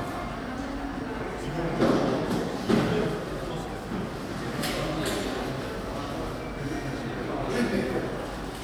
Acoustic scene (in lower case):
cafe